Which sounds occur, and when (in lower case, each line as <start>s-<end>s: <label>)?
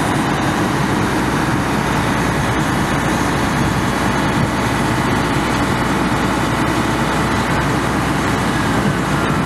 0.0s-9.4s: truck
0.0s-9.4s: wind